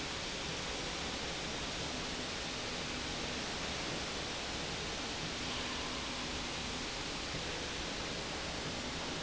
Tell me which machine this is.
slide rail